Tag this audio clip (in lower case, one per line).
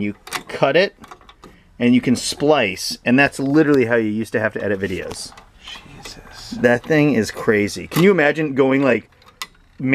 speech
inside a small room